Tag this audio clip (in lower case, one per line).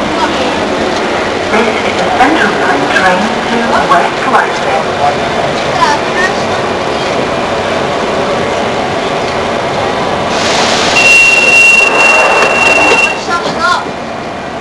vehicle
metro
rail transport